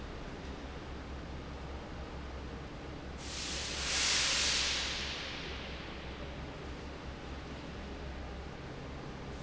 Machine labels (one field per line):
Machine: fan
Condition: normal